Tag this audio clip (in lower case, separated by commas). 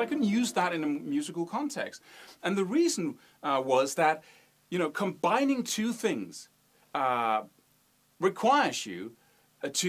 speech